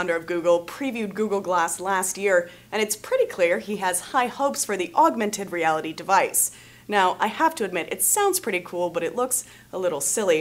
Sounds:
Speech

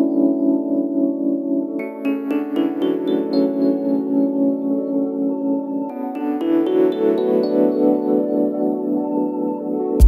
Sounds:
Synthesizer

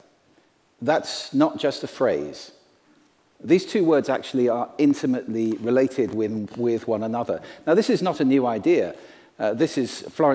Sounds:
Speech

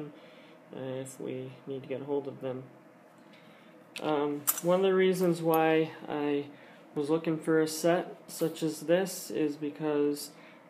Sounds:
eating with cutlery

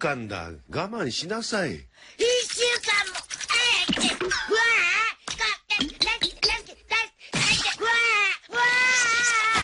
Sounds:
Speech

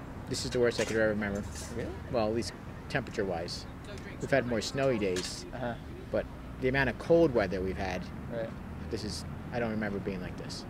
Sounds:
Speech

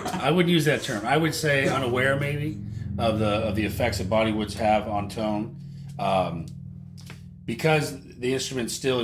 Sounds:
Speech

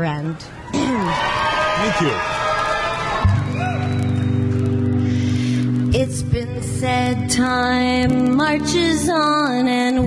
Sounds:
Speech, Music

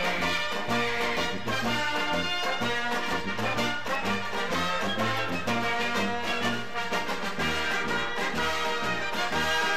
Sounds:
Music

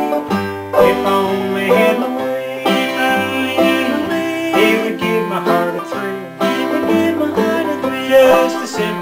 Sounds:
Music

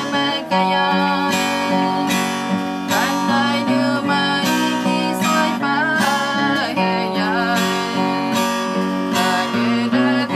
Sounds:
Music, Female singing

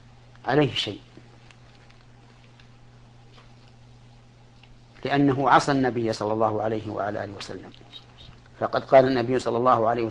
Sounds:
Speech

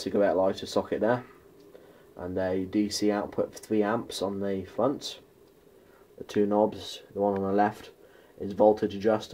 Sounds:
Speech

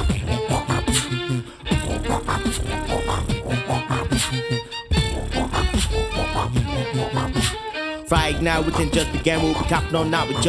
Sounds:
Musical instrument, Violin, Music

